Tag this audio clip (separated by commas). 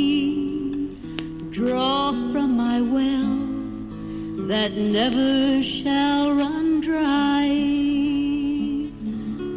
Music